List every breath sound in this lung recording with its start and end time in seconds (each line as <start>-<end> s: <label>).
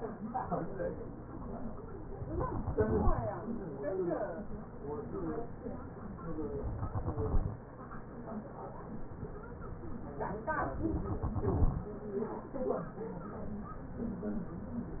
2.39-3.89 s: exhalation
6.64-8.14 s: exhalation
10.83-12.17 s: exhalation